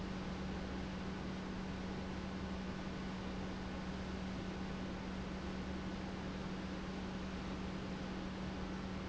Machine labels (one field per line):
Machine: pump